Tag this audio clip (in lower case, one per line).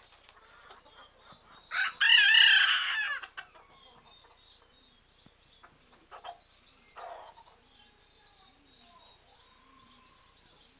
chicken crowing
crowing
cluck
fowl
chicken